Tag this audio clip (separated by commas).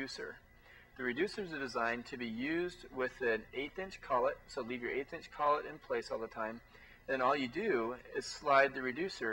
Speech